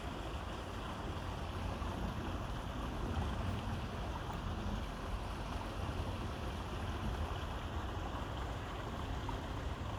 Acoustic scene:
park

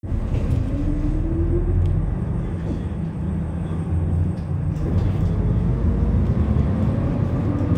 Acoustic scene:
bus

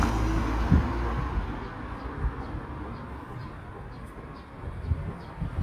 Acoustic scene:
residential area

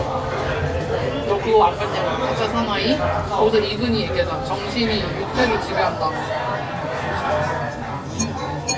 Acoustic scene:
restaurant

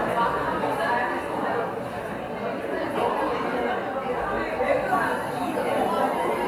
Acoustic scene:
cafe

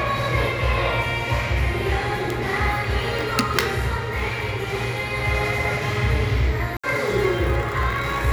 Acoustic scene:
crowded indoor space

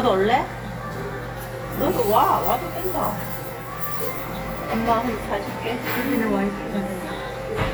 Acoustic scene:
crowded indoor space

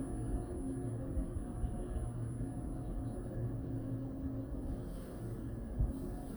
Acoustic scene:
elevator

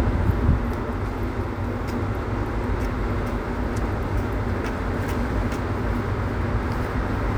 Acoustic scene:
street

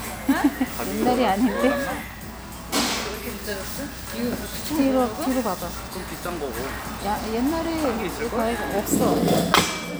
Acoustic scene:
restaurant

